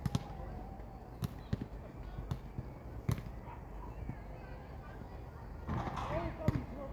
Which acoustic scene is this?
park